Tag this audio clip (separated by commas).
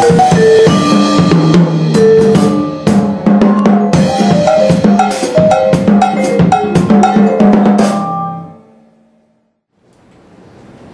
Percussion, Vibraphone, playing vibraphone, Music